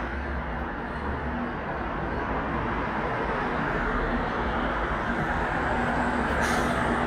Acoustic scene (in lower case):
street